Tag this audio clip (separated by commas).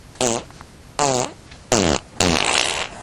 Fart